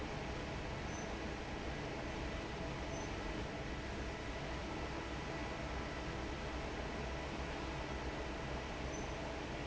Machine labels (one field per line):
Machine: fan